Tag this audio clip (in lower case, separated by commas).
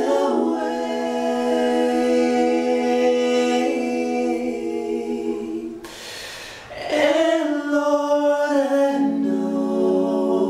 choir, male singing